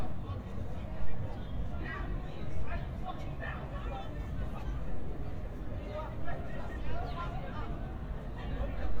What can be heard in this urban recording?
person or small group shouting